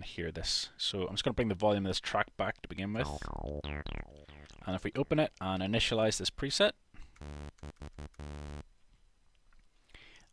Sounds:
Dubstep, Speech

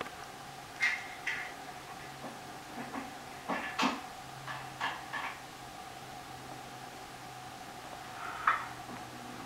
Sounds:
Animal, inside a small room

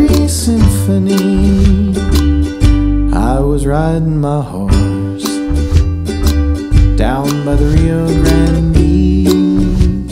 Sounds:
Music, Ukulele

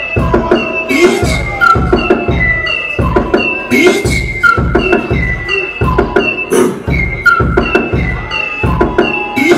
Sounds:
Music, Sound effect

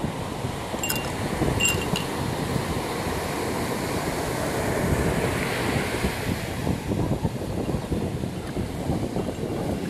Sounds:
Chink

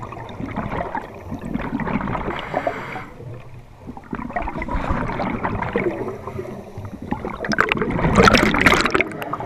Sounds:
scuba diving

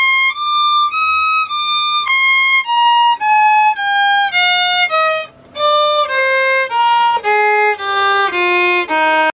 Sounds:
Musical instrument, fiddle, Music

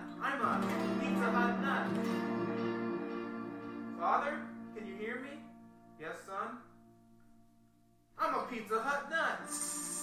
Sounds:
Speech, Music

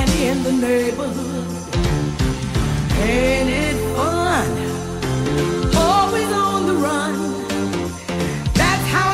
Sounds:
Jingle (music)

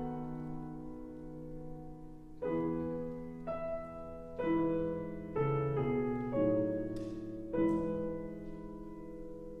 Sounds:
Music

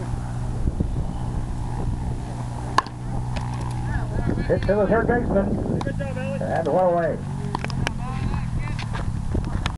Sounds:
Speech

